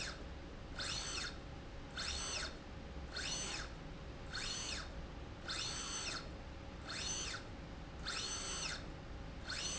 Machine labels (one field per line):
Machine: slide rail